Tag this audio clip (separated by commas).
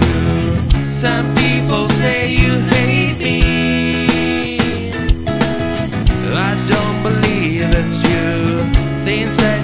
playing gong